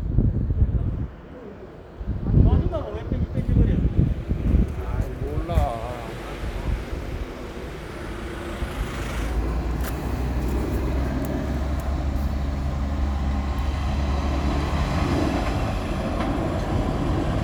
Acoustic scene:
residential area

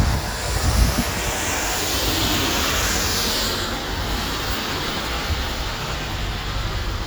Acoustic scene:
street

